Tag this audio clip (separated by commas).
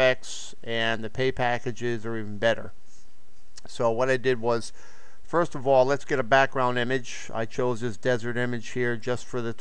Speech